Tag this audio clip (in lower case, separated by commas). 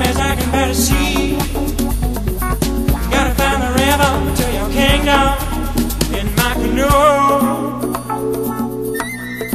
music